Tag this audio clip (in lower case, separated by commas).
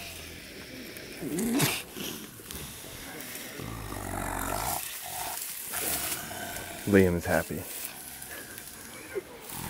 speech, outside, rural or natural, lions growling, animal, roaring cats